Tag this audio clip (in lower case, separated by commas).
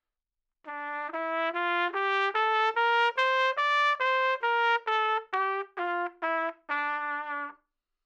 brass instrument, musical instrument, trumpet, music